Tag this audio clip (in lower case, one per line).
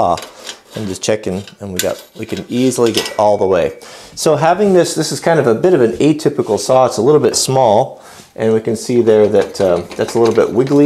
speech